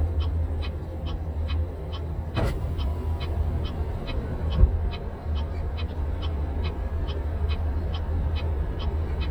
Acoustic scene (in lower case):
car